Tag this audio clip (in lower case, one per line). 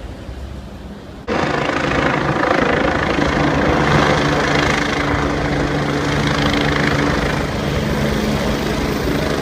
vehicle
truck